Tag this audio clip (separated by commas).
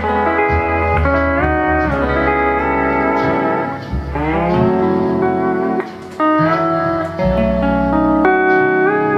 Guitar, Musical instrument, slide guitar, Music